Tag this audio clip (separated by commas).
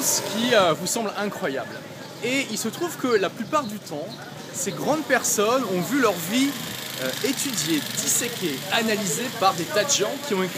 Speech